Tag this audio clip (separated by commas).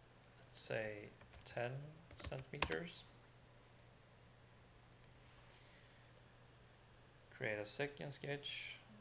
Speech